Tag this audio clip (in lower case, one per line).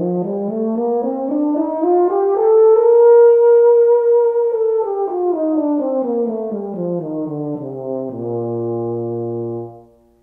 playing french horn